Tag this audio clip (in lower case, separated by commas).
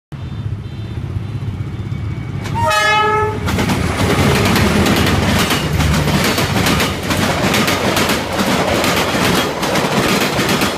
train, train horn, clickety-clack, rail transport, railroad car